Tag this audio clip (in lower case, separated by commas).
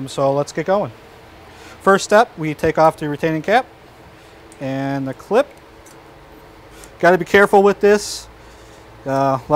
speech